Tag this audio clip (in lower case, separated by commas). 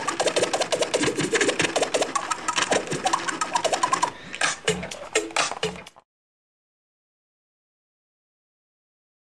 music, scratching (performance technique)